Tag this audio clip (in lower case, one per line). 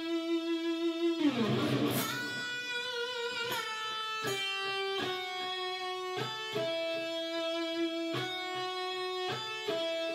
music